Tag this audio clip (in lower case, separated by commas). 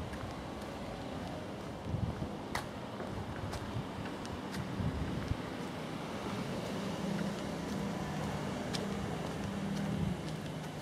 footsteps